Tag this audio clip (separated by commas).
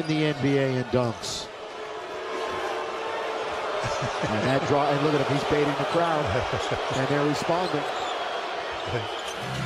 people booing